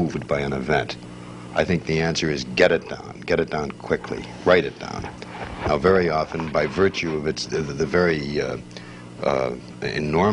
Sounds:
Speech

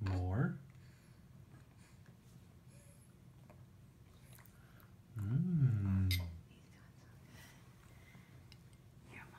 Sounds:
Speech

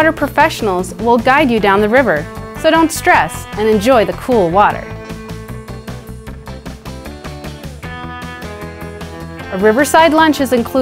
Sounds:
Speech, Music

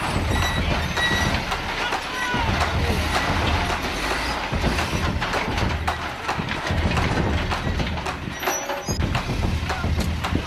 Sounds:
firing cannon

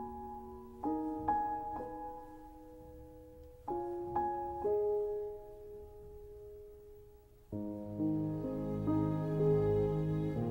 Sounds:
Music

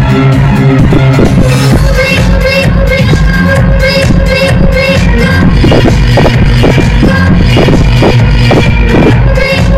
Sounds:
Exciting music, Music

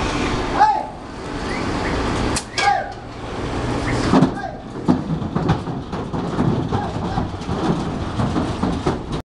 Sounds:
Speech

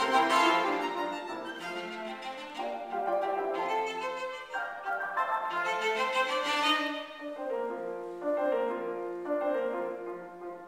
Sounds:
Cello, Music, Musical instrument, Violin

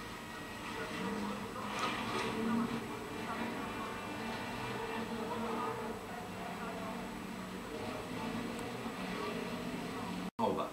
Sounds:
Vehicle, Speech

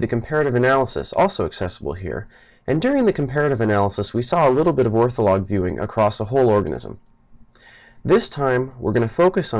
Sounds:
Speech

